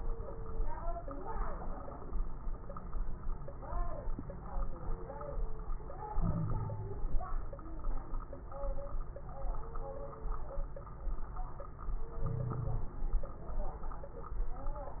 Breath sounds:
6.11-7.03 s: wheeze
12.24-12.97 s: wheeze

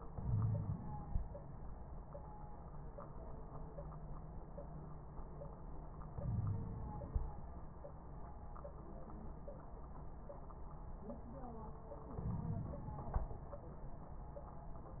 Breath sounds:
0.12-1.09 s: inhalation
0.21-0.79 s: wheeze
6.14-7.10 s: inhalation
6.22-6.62 s: wheeze
12.20-12.79 s: inhalation
12.20-12.79 s: crackles

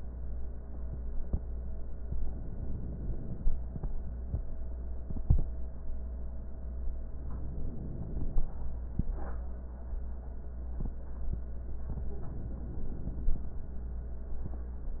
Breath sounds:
2.12-3.44 s: inhalation
7.19-8.50 s: inhalation
11.98-13.30 s: inhalation

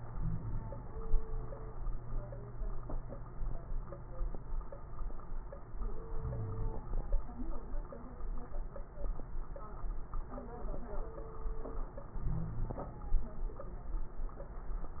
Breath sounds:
0.00-0.86 s: inhalation
0.00-0.86 s: wheeze
6.09-7.20 s: inhalation
6.19-6.77 s: wheeze
12.19-12.88 s: wheeze
12.19-13.14 s: inhalation

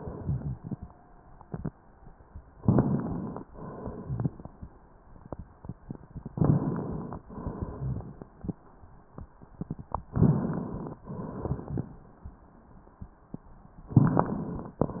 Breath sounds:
2.54-3.44 s: inhalation
2.54-3.44 s: crackles
3.45-4.63 s: exhalation
4.03-4.31 s: rhonchi
6.31-7.24 s: inhalation
6.31-7.24 s: crackles
7.31-8.59 s: exhalation
7.31-8.59 s: crackles
10.11-11.00 s: inhalation
10.11-11.00 s: crackles
11.09-11.98 s: exhalation
11.09-11.98 s: crackles

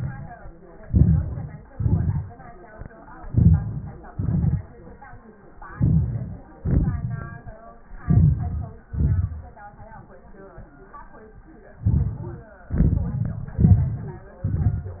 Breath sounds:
0.82-1.70 s: inhalation
1.68-2.71 s: exhalation
3.25-4.14 s: inhalation
4.12-5.25 s: exhalation
5.73-6.59 s: inhalation
6.58-7.85 s: exhalation
8.02-8.91 s: inhalation
8.92-10.03 s: exhalation
11.78-12.68 s: inhalation
12.67-13.57 s: exhalation
12.67-13.57 s: crackles
13.61-14.38 s: crackles
13.63-14.40 s: inhalation
14.38-15.00 s: crackles
14.39-15.00 s: exhalation

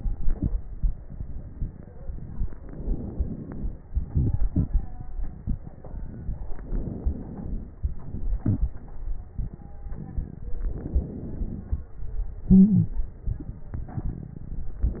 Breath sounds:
2.52-3.81 s: inhalation
3.83-6.39 s: exhalation
3.83-6.39 s: crackles
6.51-7.72 s: inhalation
7.77-10.45 s: exhalation
10.54-11.90 s: inhalation
12.42-12.93 s: stridor
12.42-14.80 s: exhalation

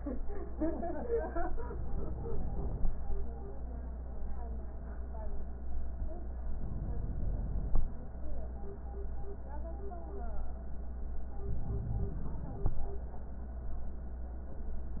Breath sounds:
1.66-2.95 s: inhalation
6.57-7.86 s: inhalation
11.46-12.76 s: inhalation

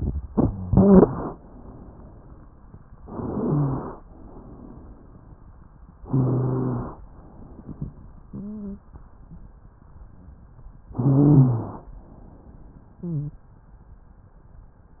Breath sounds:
3.01-3.98 s: inhalation
3.26-3.80 s: rhonchi
4.06-5.18 s: exhalation
6.00-7.01 s: inhalation
6.01-6.91 s: rhonchi
7.09-8.92 s: exhalation
8.29-8.81 s: stridor
10.90-11.89 s: inhalation
10.91-11.81 s: rhonchi
11.91-13.51 s: exhalation
13.01-13.35 s: stridor

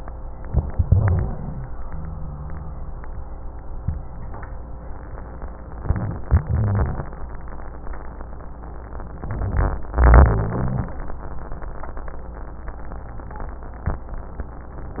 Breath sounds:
0.84-1.67 s: exhalation
0.84-1.67 s: rhonchi
1.78-2.96 s: rhonchi
5.75-6.26 s: rhonchi
5.77-6.28 s: inhalation
6.38-7.17 s: exhalation
6.45-7.10 s: rhonchi
9.24-9.93 s: inhalation
9.28-9.93 s: rhonchi
10.00-10.99 s: exhalation
10.00-10.99 s: rhonchi

